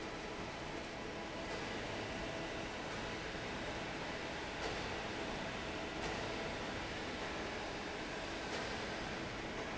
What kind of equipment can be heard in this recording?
fan